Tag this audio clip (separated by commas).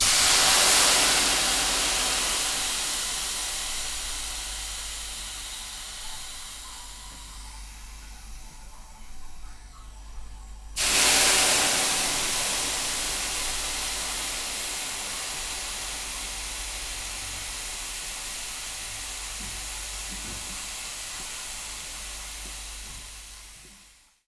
Hiss